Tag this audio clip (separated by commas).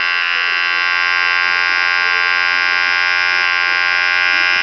home sounds